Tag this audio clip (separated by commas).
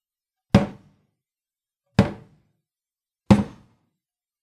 Drawer open or close, Domestic sounds, Cupboard open or close